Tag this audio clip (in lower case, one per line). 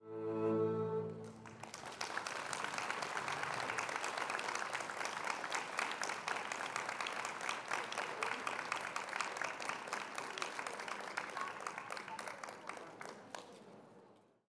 human group actions
applause